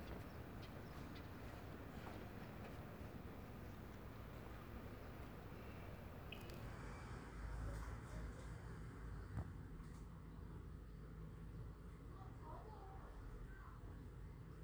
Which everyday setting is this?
residential area